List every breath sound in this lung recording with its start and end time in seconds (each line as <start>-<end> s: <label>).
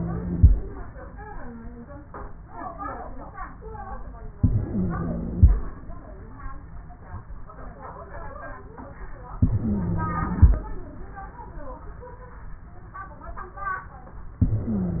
0.00-0.49 s: inhalation
0.00-0.49 s: wheeze
4.37-5.55 s: inhalation
4.37-5.55 s: wheeze
9.41-10.58 s: inhalation
9.41-10.58 s: wheeze
14.42-15.00 s: inhalation
14.42-15.00 s: wheeze